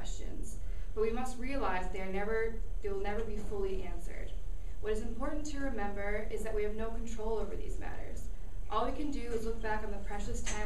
Woman giving a speech